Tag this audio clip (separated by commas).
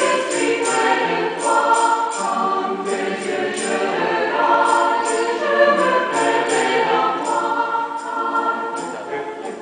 Music